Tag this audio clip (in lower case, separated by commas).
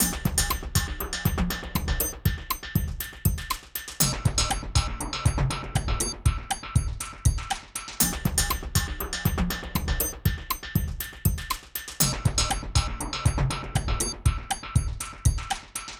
percussion, music, musical instrument